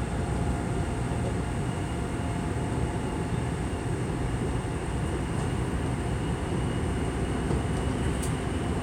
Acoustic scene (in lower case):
subway train